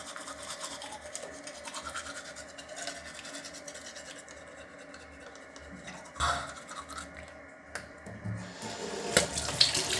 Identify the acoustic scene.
restroom